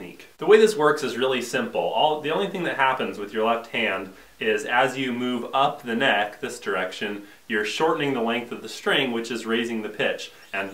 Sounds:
Speech

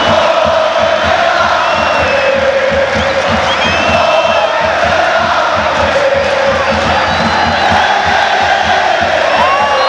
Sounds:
Music, Speech

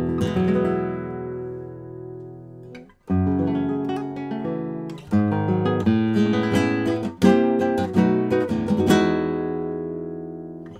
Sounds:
Acoustic guitar, Guitar, Plucked string instrument, Musical instrument, Strum, Music

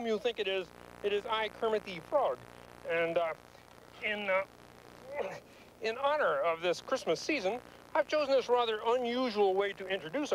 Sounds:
Speech

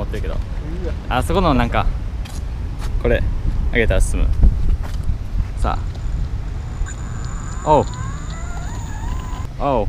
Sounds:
Speech

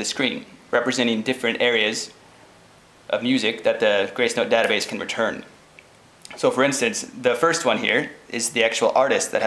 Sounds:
Speech

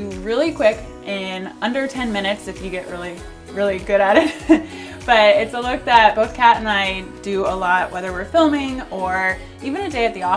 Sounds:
Music, Speech

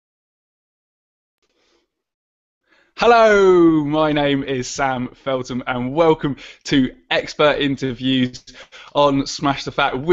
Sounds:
Speech

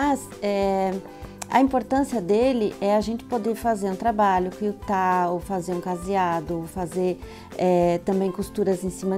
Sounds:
Speech, Music

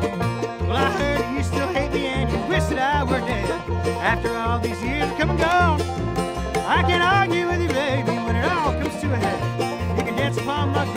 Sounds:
Music

